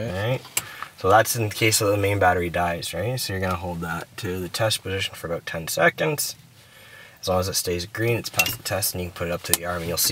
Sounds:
Speech

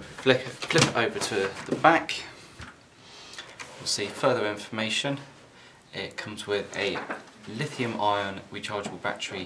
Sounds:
Speech

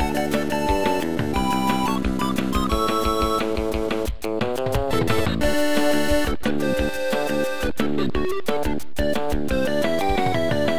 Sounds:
Soundtrack music, Music, Theme music

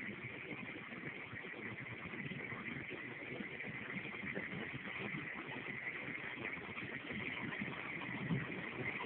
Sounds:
Vehicle

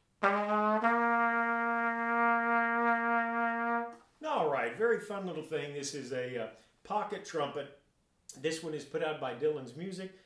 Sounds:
playing cornet

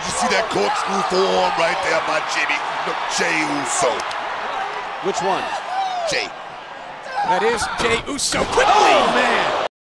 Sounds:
Speech, Smash

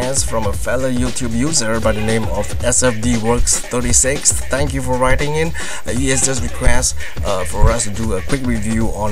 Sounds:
Music, Speech

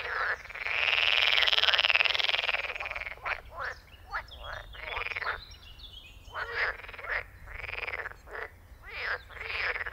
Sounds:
frog croaking

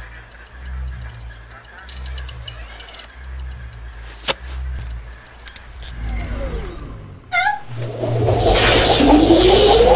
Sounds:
Music

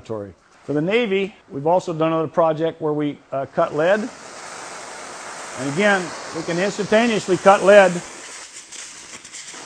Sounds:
Speech

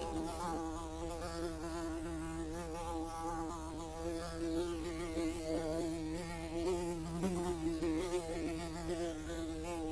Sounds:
fly

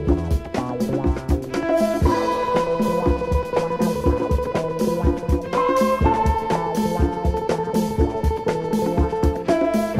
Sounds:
Music

